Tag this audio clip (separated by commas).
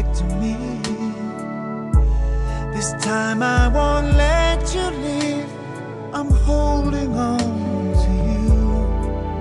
Music